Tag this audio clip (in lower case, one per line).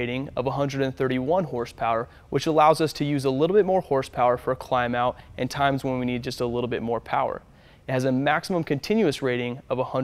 speech